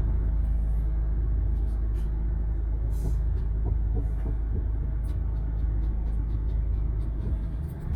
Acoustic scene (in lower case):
car